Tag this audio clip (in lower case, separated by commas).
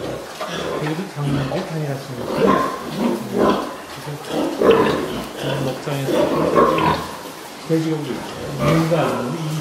oink, speech, pig oinking